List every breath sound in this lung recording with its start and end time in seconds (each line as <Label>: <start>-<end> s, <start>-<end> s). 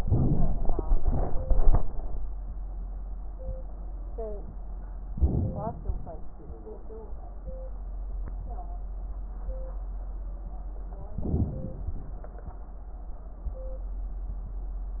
Inhalation: 0.01-0.85 s, 5.16-5.79 s, 11.19-11.82 s
Exhalation: 1.01-1.85 s
Crackles: 0.01-0.85 s, 1.01-1.85 s